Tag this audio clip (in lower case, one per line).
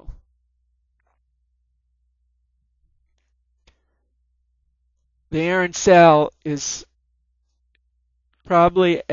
speech